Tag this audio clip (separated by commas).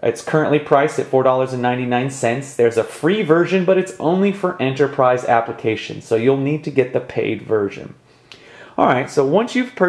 Speech